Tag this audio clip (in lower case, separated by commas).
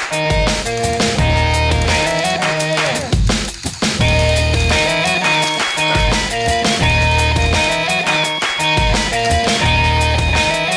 music